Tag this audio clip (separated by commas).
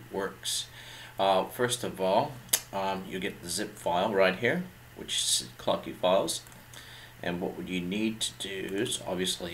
Speech